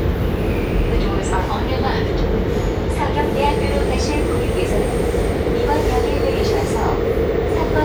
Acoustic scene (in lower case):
subway train